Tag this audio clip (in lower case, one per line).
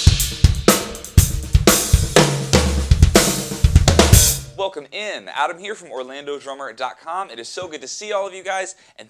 music
speech